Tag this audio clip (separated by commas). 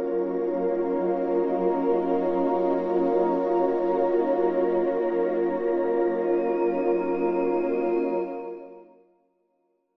Music